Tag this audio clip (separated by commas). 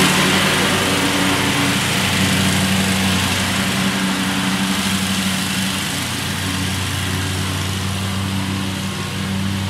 lawn mowing